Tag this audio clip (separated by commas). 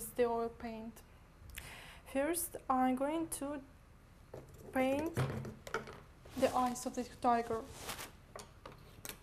woman speaking